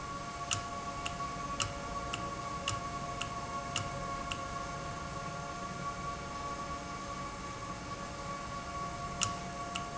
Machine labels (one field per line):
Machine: valve